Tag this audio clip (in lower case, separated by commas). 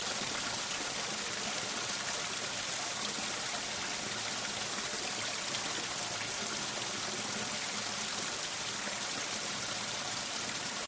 stream, water